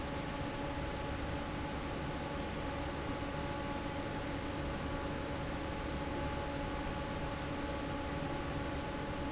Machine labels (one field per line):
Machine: fan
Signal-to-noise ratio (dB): -6 dB